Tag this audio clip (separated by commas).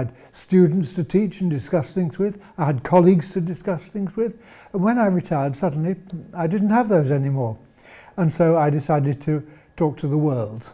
Speech